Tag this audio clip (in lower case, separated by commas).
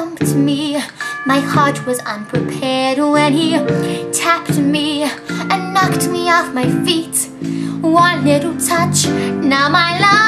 music, female singing